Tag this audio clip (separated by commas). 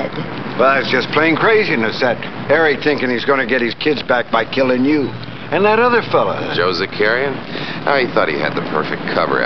Speech